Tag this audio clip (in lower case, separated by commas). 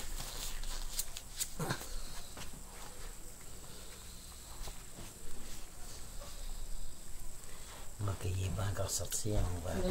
speech, animal, pets, dog